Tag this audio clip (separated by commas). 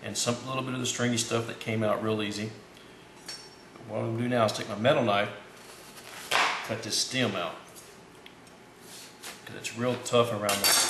eating with cutlery, silverware, dishes, pots and pans